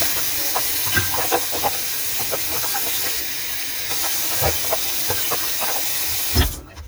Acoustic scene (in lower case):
kitchen